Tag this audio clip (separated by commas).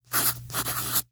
Writing, home sounds